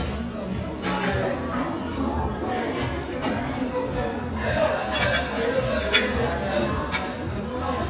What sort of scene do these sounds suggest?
restaurant